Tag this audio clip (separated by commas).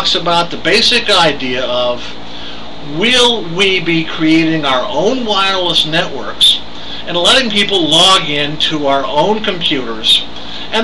Speech